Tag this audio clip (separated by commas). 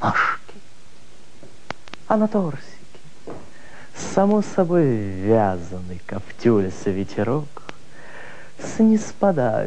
Speech, monologue